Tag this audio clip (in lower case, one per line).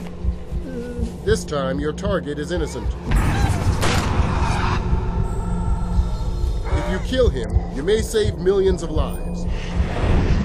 speech
music